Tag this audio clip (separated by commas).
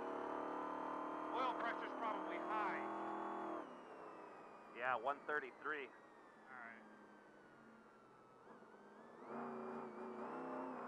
Speech, Vehicle